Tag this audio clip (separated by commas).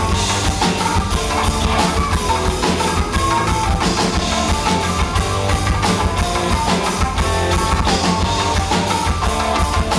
Progressive rock, Rock and roll, Music